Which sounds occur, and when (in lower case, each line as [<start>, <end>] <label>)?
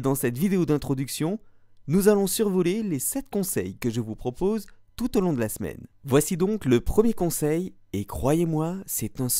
[0.00, 1.43] man speaking
[0.00, 9.35] background noise
[1.43, 1.90] breathing
[1.88, 4.81] man speaking
[5.01, 5.83] man speaking
[6.00, 7.74] man speaking
[7.95, 9.35] man speaking